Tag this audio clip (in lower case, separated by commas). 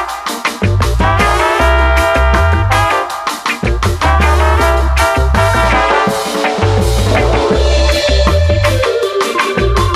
music